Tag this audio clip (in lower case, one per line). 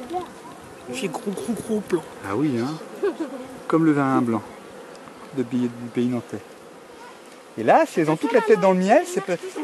speech
bee or wasp
insect